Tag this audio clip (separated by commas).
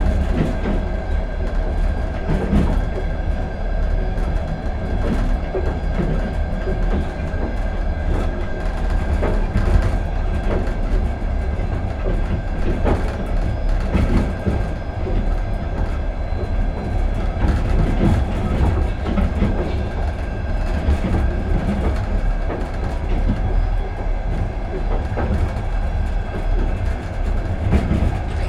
Train, Vehicle, Rail transport